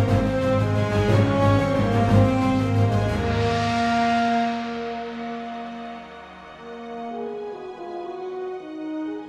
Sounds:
music, sound effect, musical instrument

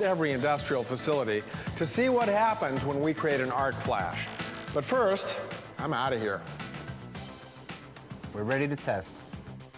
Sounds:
speech, music

